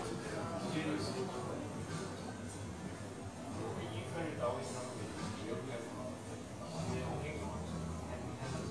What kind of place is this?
cafe